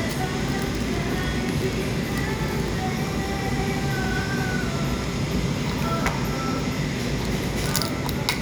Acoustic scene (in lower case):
cafe